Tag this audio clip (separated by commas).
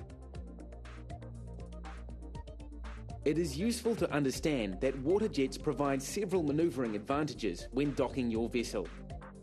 Music, Speech